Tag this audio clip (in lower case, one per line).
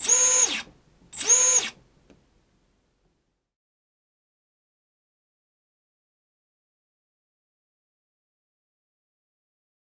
inside a small room
silence